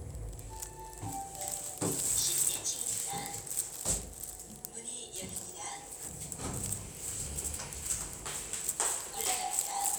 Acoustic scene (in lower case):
elevator